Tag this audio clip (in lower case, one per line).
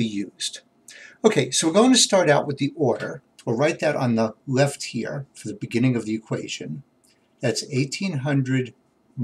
speech